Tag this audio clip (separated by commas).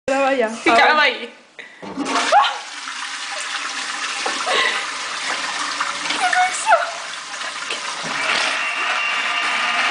Toilet flush, Speech